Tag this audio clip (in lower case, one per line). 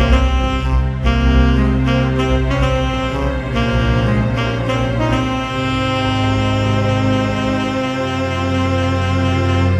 music